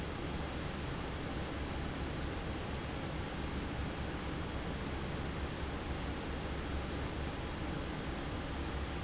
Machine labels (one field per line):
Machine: fan